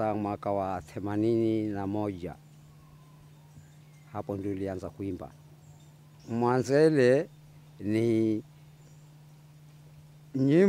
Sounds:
Speech

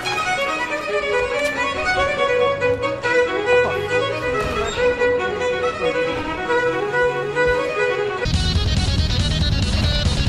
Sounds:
Bowed string instrument, Music, String section, Violin, Speech

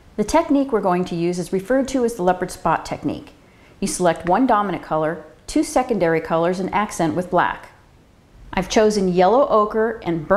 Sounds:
Speech

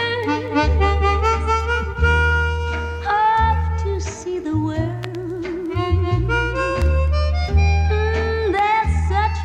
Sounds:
Music, Saxophone

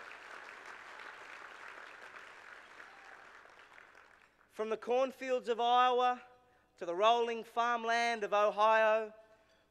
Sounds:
Narration, Speech, man speaking

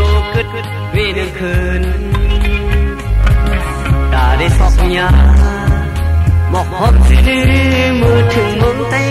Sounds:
Music

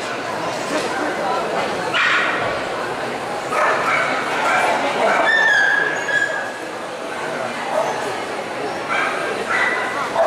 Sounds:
Bow-wow, Speech

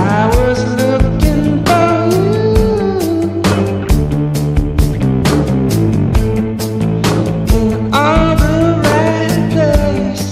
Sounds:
Music, Rock music

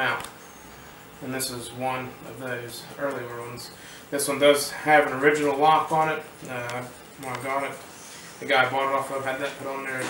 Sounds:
Speech

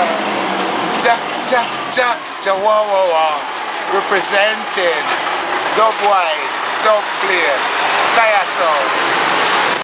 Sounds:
Speech

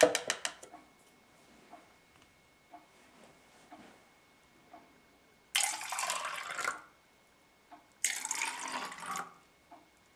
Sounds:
Liquid

